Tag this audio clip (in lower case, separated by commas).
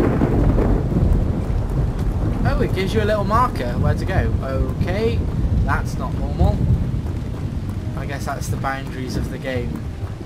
inside a small room, music, speech, outside, rural or natural